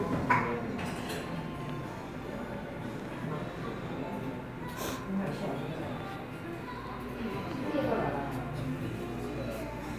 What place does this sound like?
cafe